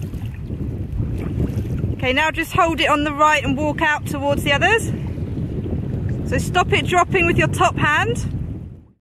Wind is blowing as a woman speaks